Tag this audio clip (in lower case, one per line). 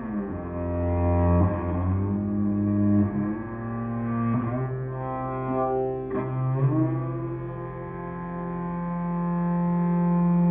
cello
music
musical instrument
bowed string instrument
classical music